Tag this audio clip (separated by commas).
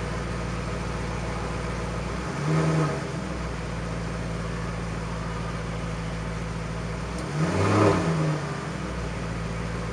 Car, Vehicle